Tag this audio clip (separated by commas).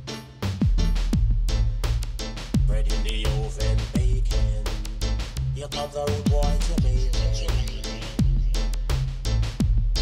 Music